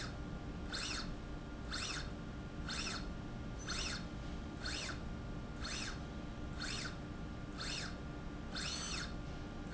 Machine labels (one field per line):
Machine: slide rail